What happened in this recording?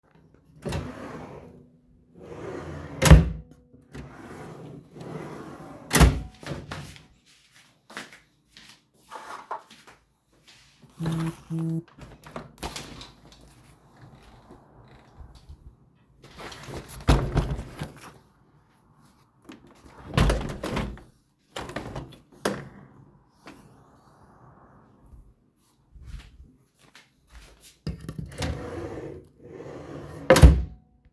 I opened the drawer and close it then I went near window and opened and closed it. I got a notifications too